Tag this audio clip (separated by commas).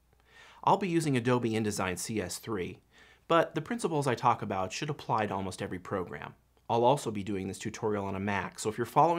Speech